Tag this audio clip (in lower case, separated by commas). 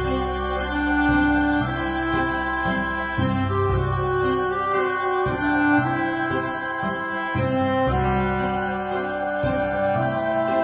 music, theme music, soul music